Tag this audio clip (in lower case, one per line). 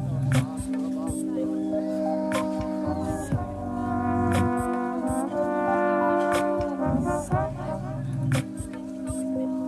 playing trombone